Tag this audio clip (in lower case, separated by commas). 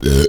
eructation